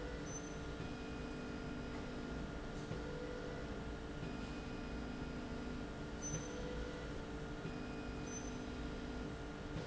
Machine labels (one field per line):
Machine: slide rail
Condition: normal